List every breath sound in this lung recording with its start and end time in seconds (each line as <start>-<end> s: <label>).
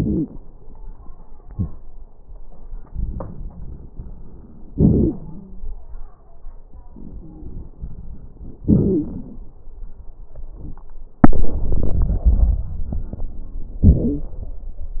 0.00-0.28 s: wheeze
2.92-4.70 s: inhalation
2.92-4.70 s: crackles
4.75-5.77 s: exhalation
5.11-5.77 s: wheeze
6.87-8.61 s: inhalation
6.87-8.61 s: crackles
8.65-9.09 s: wheeze
8.65-9.41 s: exhalation
11.23-13.83 s: inhalation
11.23-13.83 s: crackles
13.85-14.56 s: exhalation
13.85-14.56 s: crackles